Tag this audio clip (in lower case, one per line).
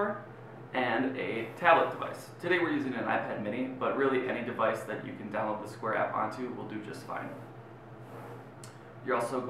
speech